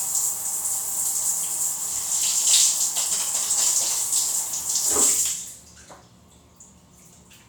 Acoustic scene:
restroom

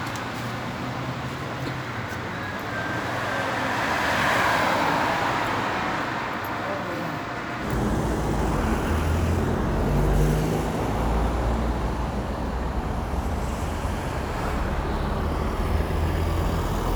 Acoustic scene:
street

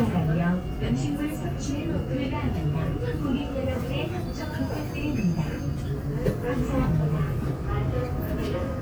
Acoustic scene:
subway train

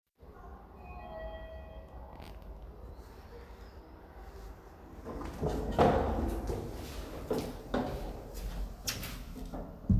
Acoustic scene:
elevator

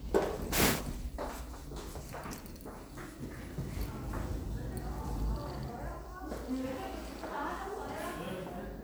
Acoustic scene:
elevator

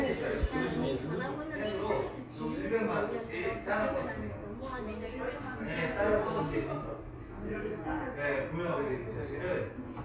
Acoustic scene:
crowded indoor space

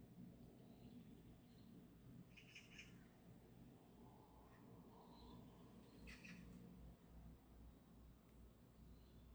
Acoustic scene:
park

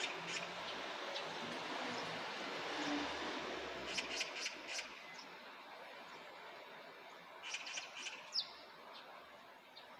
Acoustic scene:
park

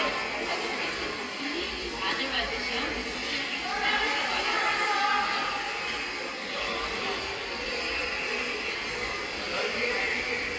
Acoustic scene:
subway station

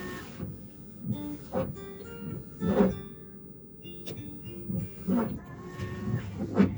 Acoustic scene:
car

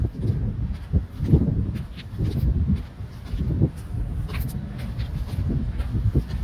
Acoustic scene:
residential area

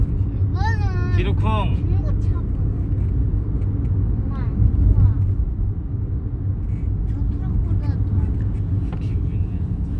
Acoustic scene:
car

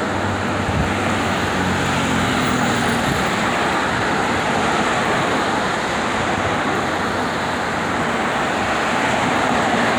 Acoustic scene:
street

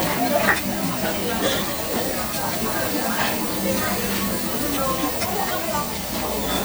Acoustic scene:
restaurant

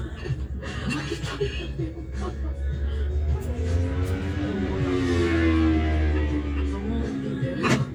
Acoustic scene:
cafe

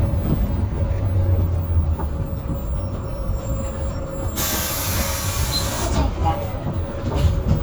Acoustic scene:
bus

